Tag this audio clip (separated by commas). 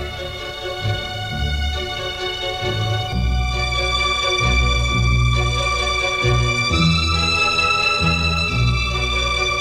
Tender music, Music